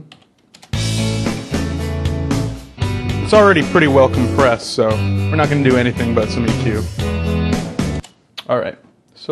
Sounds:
music, speech

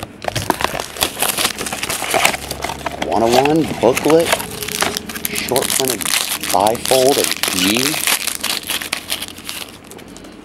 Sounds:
crackle

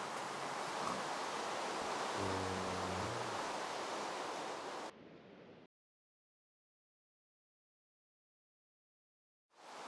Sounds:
rain on surface

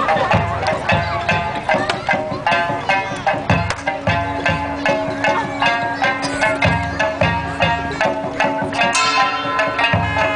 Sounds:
speech, music

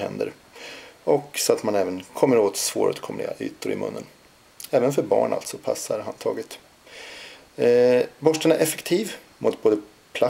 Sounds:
speech

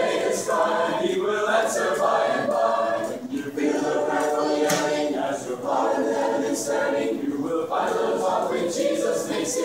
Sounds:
female singing, male singing, choir

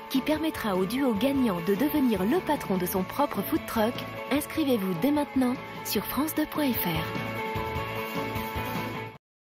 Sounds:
speech, music

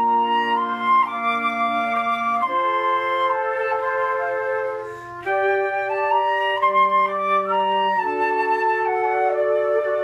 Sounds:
playing flute

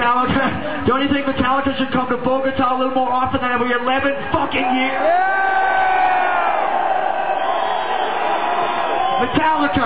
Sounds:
crowd, speech

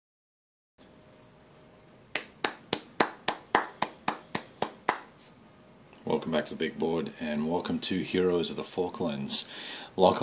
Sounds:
speech, inside a small room

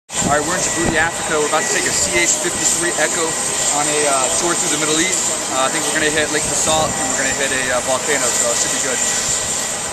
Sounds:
jet engine, speech, aircraft, vehicle

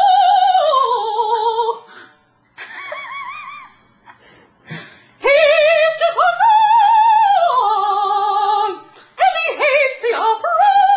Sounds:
opera

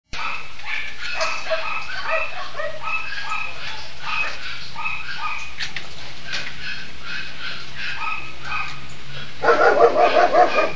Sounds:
animal, speech, dog

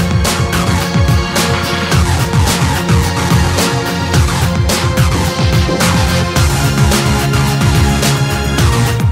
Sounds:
music

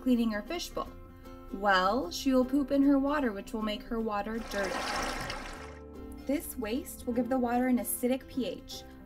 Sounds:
music, speech

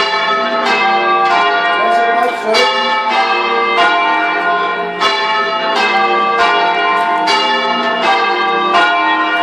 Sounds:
speech, music

